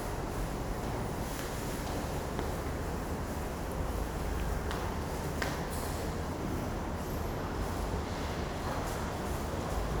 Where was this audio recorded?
in a subway station